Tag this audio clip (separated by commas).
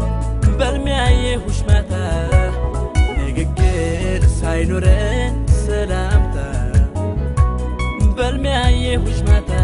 Background music, Music, Soundtrack music